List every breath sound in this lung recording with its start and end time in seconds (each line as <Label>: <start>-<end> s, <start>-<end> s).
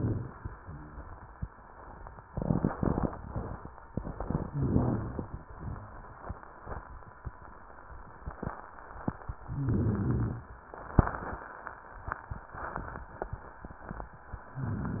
Inhalation: 4.50-5.46 s, 9.52-10.62 s
Wheeze: 0.58-1.09 s
Rhonchi: 4.50-5.46 s, 5.60-6.14 s, 9.52-10.62 s